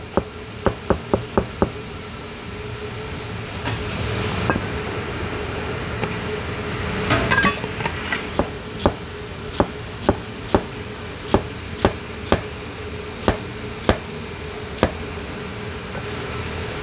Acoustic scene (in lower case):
kitchen